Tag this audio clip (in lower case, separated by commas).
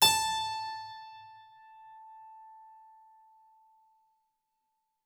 musical instrument, music, keyboard (musical)